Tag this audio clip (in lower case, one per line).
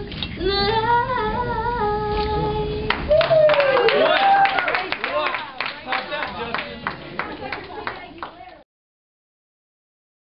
speech